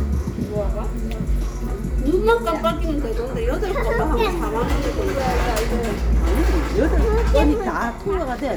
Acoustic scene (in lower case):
restaurant